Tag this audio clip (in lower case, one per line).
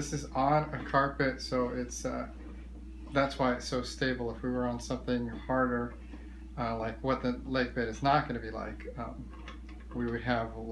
speech